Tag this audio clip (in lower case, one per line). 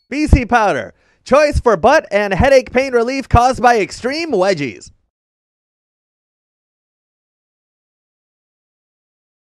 speech